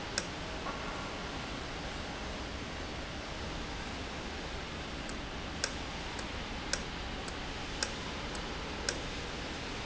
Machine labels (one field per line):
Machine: valve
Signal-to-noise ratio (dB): -6 dB